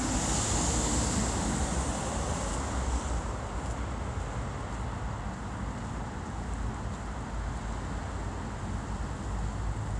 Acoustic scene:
street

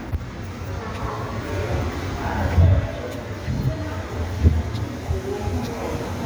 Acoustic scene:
subway station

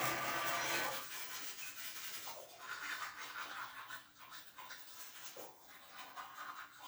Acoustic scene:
restroom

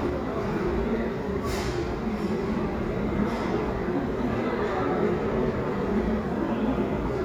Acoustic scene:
restaurant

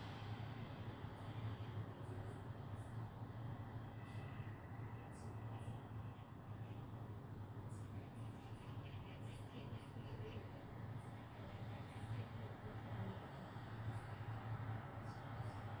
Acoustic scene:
residential area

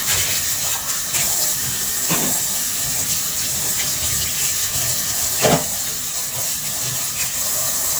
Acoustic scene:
kitchen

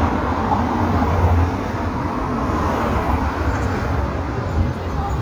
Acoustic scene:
street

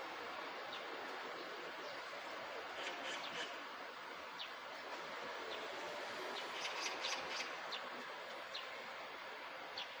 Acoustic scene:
park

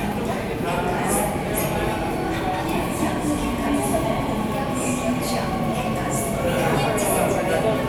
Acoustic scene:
subway station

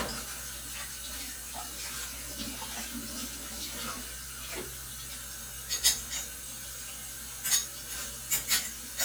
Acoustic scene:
kitchen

